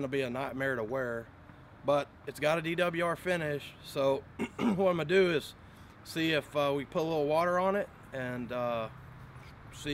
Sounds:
Speech

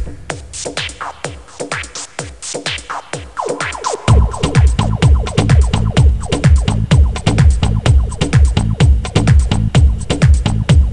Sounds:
Music, House music

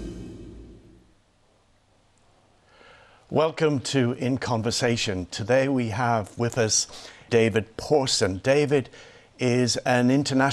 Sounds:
Speech

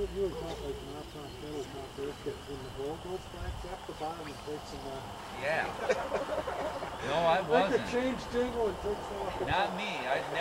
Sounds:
Speech

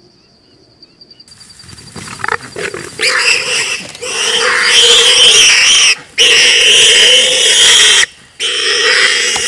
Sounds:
Pig, Animal

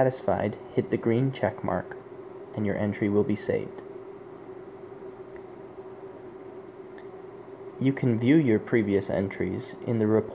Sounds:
Speech, Tick

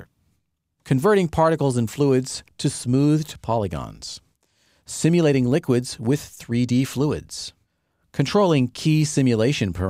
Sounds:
Speech

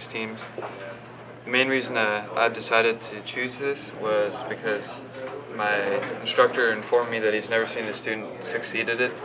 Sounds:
Speech

